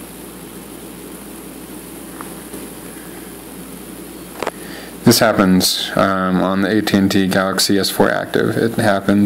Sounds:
Speech, inside a small room

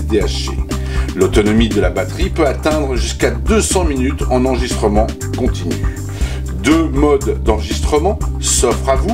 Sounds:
Speech, Music

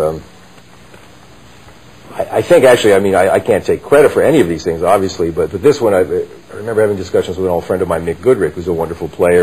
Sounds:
Speech

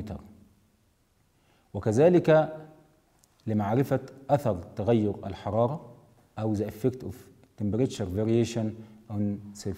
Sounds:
Speech

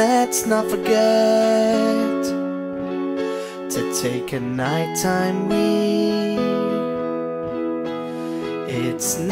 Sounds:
Acoustic guitar

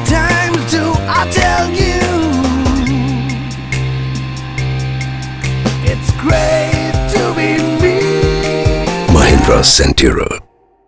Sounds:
Music, Speech

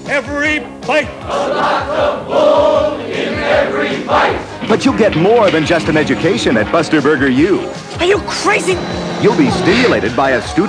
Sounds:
Speech, Music

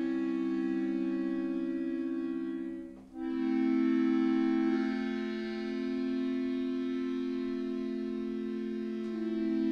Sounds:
Musical instrument, Music, Piano

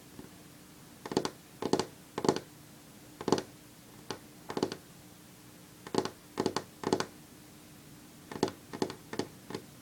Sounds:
Tap

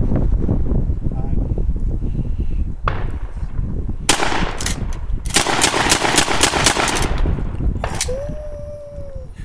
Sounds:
Speech

